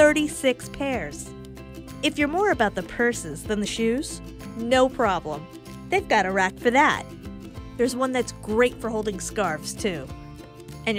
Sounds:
speech, music

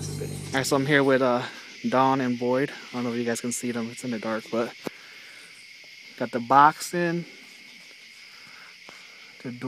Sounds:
speech

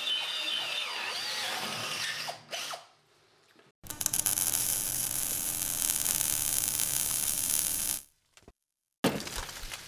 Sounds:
power tool, tools, drill

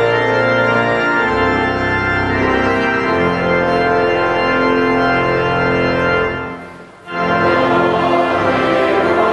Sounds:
singing, choir, organ

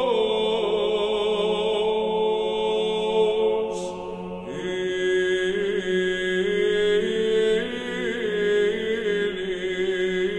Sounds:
mantra

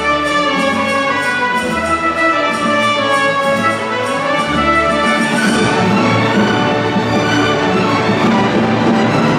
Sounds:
fiddle, double bass, bowed string instrument, cello

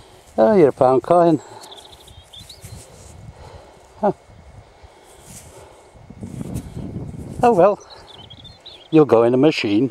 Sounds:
speech, animal

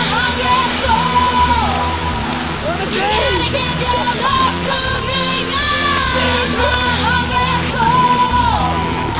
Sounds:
music, outside, rural or natural, speech

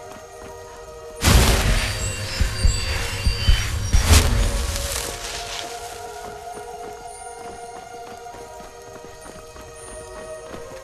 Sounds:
music, animal, clip-clop

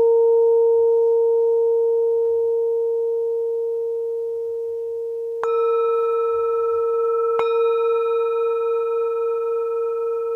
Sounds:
singing bowl

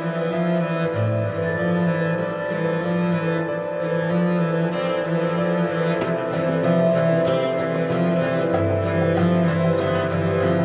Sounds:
music

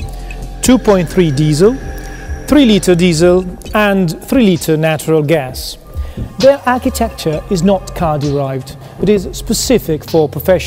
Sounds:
speech, music

